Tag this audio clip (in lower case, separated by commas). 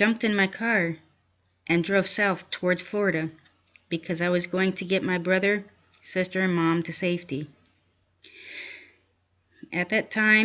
speech